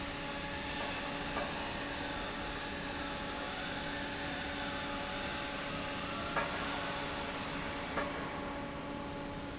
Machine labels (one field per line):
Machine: fan